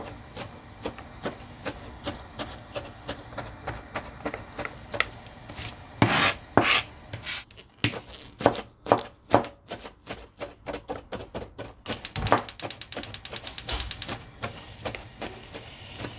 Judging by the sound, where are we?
in a kitchen